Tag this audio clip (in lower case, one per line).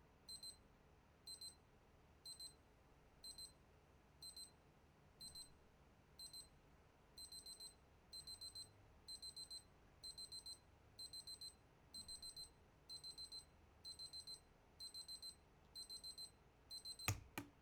alarm